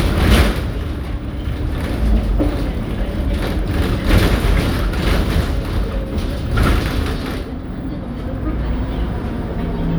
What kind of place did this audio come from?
bus